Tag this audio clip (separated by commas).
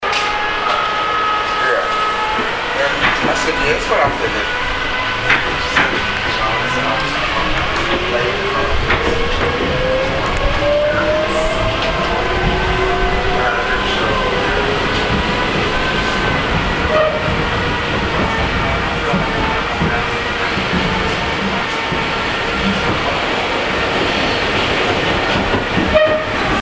Subway, Rail transport, Vehicle